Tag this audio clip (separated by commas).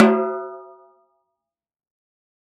Drum, Snare drum, Musical instrument, Percussion, Music